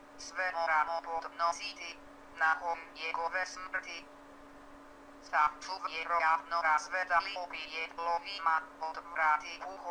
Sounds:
Female speech, Speech, Male speech

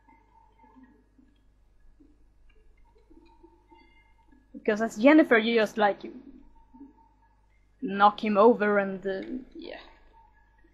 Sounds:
Speech

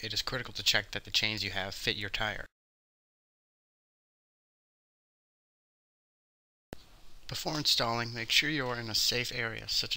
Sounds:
Speech

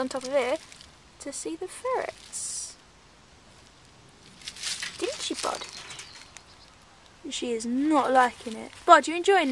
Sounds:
Bird, Speech

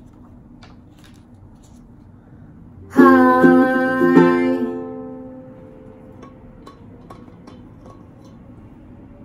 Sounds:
playing ukulele

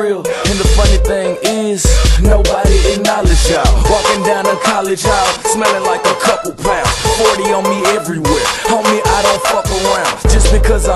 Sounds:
Music

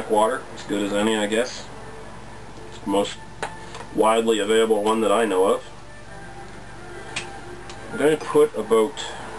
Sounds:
Speech, Music

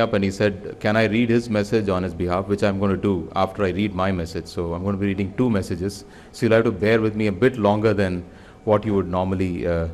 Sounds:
Narration, Speech, man speaking

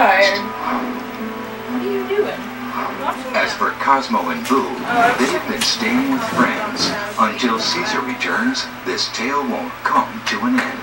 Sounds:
Speech, Music

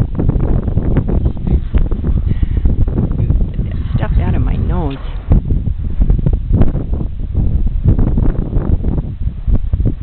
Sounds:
Speech, outside, rural or natural

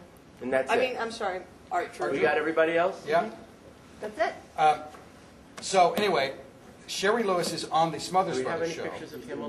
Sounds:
Speech

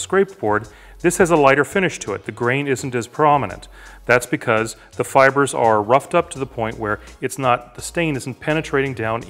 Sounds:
planing timber

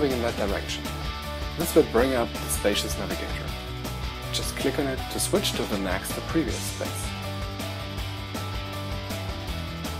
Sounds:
Speech, Music

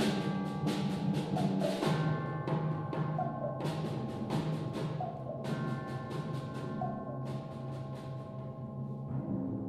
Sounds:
Music, Timpani

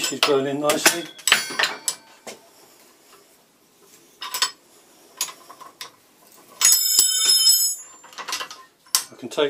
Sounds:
Speech, clink

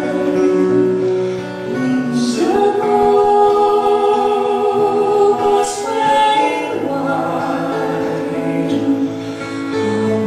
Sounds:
Music

